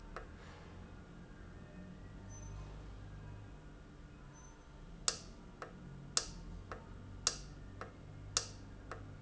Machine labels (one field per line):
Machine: valve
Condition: normal